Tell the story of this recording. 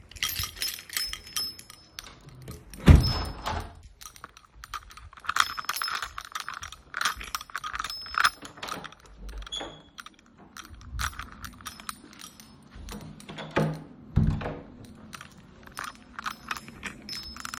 I walk around my room with my keys in my hand and they jingle. I close the window, go to the door, close the door and leave the room.